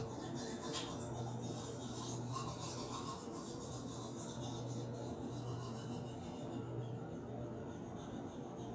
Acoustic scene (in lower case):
restroom